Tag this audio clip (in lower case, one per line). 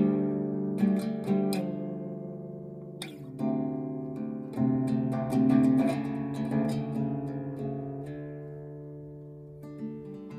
plucked string instrument
strum
guitar
playing acoustic guitar
musical instrument
music
acoustic guitar